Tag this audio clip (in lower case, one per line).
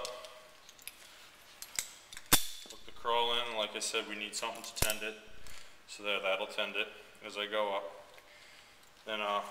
speech